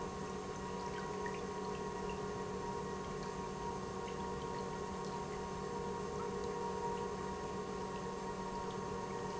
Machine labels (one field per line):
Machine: pump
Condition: normal